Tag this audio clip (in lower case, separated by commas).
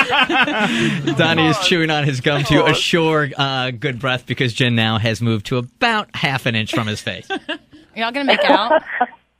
speech